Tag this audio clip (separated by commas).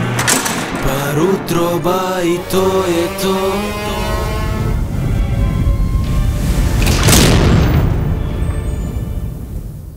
Boom, Music